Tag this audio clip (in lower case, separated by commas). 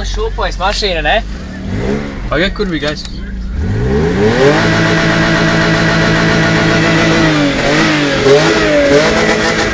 revving, car, speech, vehicle